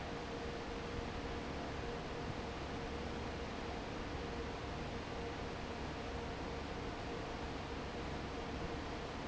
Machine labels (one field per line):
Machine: fan